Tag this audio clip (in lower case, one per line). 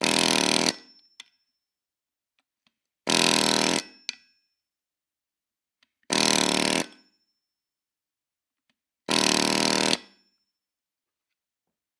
tools